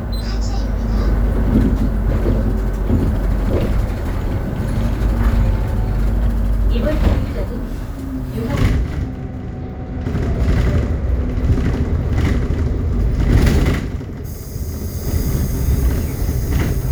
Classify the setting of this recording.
bus